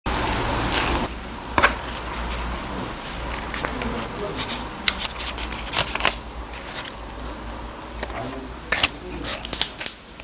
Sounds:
speech

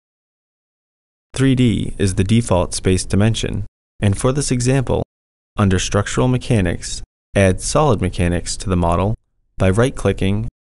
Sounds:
speech

